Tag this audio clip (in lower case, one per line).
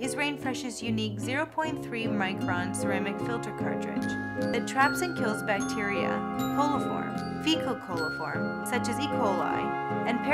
music
speech